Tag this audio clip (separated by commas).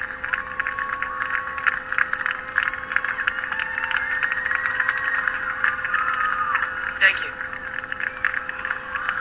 Speech, man speaking